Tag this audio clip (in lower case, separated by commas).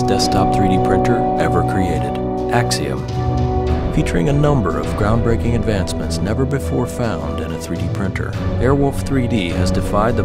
music, speech